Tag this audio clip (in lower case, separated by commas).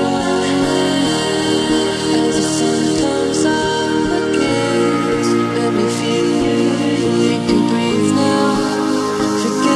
electronic music, music